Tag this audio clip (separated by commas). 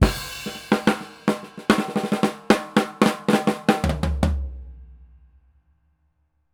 Drum, Percussion, Music, Drum kit, Musical instrument